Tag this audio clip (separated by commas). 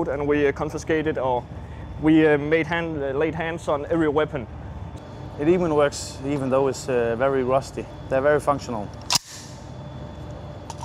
Speech